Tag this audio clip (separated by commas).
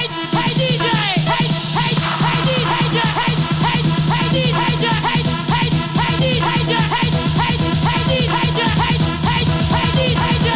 Disco, Electronic music, Music, House music